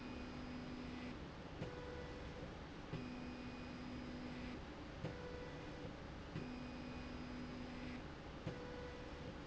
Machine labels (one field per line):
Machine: slide rail